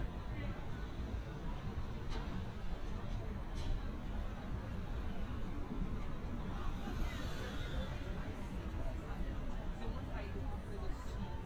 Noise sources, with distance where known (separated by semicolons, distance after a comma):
unidentified human voice, far